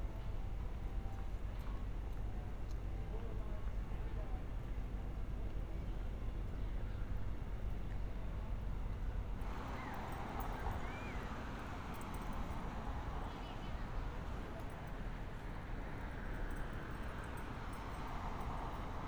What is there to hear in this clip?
background noise